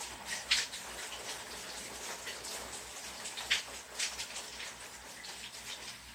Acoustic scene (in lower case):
restroom